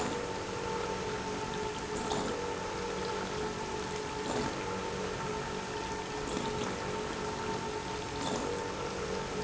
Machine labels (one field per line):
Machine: pump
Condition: abnormal